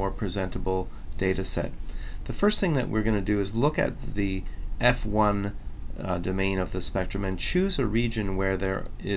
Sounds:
Speech

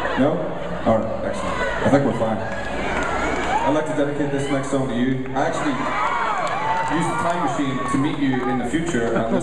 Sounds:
Speech

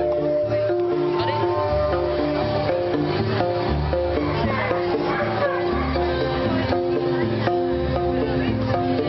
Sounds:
Speech, Music

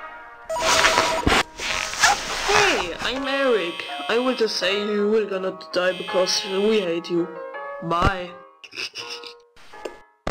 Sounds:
Speech, Music

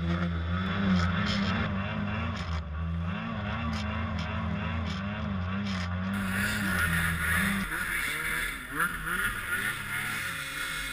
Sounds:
driving snowmobile

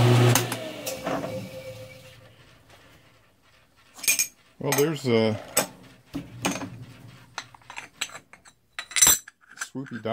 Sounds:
Speech, Tools

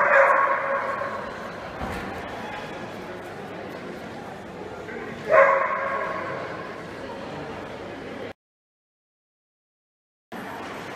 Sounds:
Bow-wow, dog bow-wow, Dog, pets, Animal

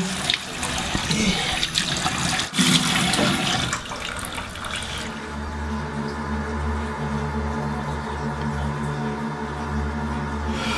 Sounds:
Sink (filling or washing), Water, Water tap

